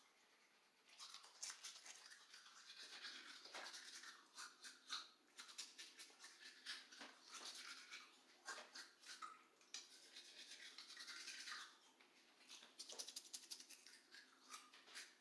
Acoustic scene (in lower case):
restroom